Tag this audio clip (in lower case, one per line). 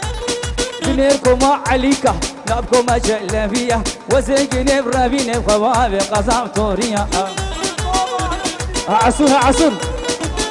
music